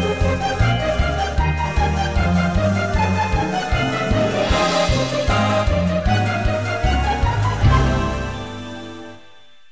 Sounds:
music

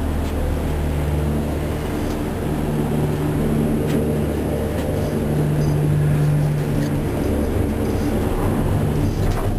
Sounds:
vehicle

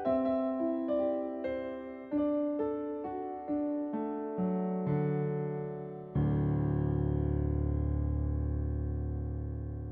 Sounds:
music

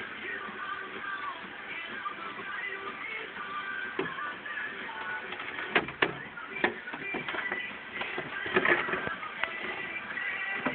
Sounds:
music

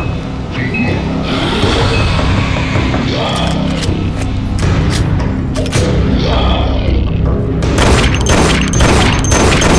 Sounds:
music
boom
speech

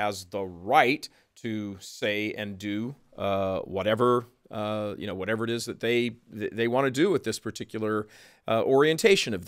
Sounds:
narration
male speech
speech

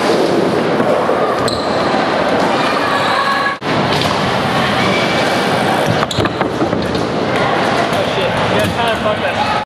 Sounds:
speech

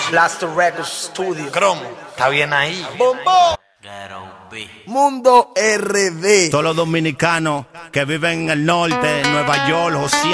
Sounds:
speech

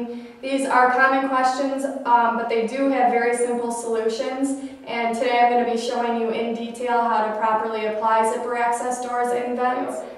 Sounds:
speech

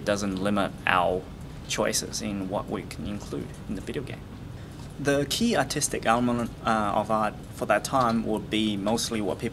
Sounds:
speech

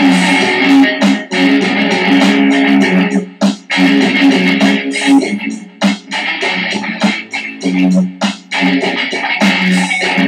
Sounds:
musical instrument
music

